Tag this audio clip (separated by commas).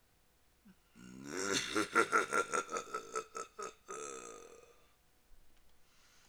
Human voice, Laughter